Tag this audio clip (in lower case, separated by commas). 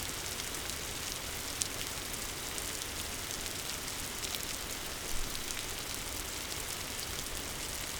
rain, water